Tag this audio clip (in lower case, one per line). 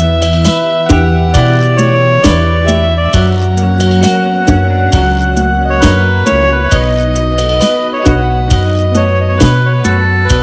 music
blues